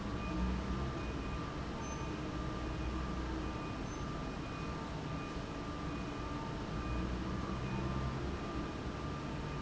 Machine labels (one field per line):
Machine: fan